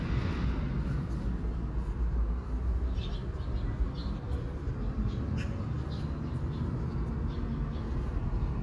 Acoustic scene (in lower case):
park